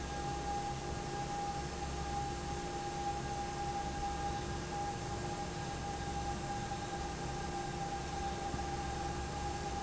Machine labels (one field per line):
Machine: fan